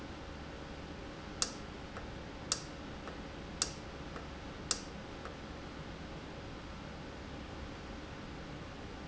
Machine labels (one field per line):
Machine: valve